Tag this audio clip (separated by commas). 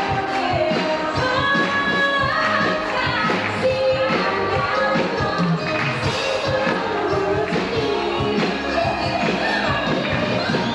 Music